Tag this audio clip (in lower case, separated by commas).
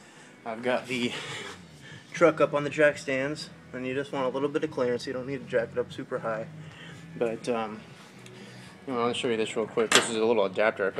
speech, music